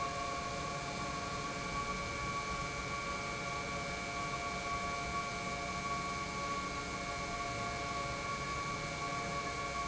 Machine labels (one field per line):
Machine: pump